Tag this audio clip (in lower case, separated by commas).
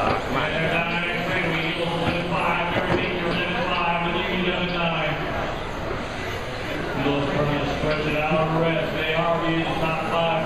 speech